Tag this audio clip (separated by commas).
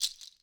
Rattle